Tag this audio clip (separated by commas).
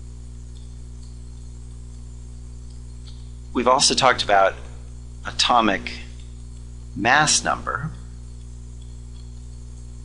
Speech, inside a small room